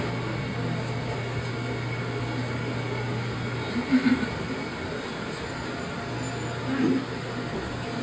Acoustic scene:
subway train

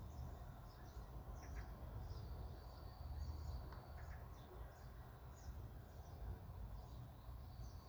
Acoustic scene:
park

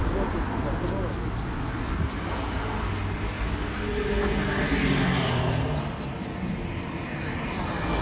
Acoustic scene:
street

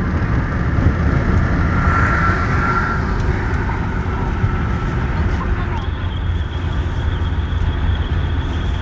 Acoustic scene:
car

